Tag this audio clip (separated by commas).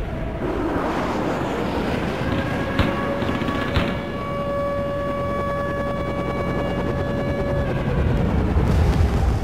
Air horn